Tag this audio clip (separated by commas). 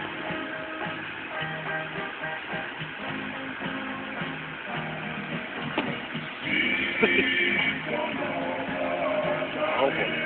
Music, Speech